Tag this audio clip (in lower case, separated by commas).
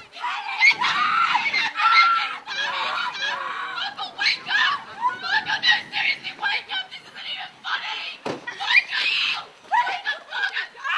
speech, screaming, people screaming